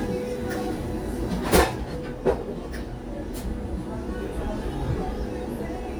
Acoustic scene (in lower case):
cafe